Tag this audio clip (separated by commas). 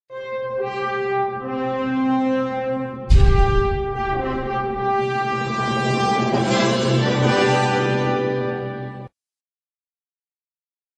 Brass instrument